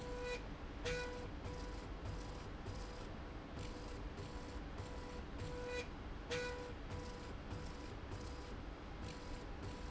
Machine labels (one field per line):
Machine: slide rail